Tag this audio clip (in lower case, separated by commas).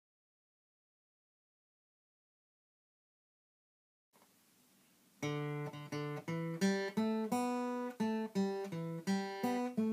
guitar, musical instrument, music, acoustic guitar, plucked string instrument